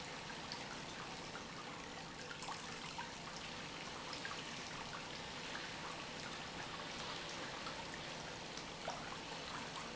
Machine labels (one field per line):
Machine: pump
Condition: normal